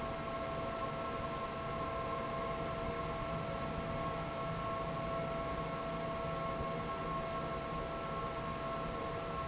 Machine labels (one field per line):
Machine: fan